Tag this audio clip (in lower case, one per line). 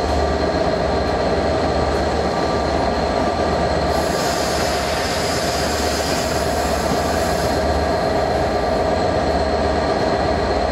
vehicle
train
railroad car
underground